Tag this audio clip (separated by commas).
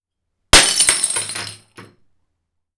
Glass, Shatter